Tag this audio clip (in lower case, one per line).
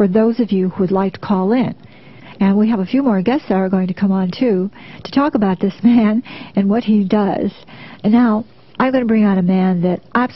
speech